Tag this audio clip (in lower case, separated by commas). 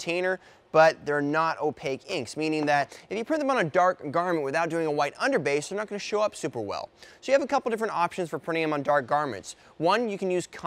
speech